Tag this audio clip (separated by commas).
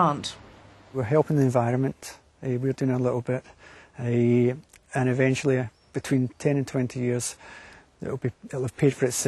Speech